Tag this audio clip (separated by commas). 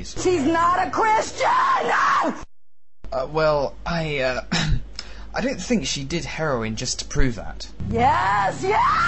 Speech